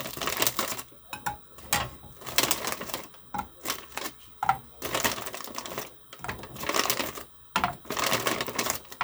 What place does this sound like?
kitchen